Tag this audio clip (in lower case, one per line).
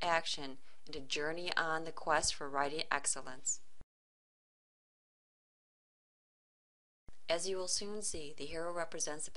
speech